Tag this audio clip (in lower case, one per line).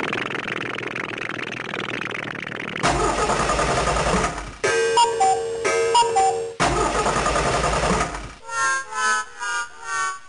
sound effect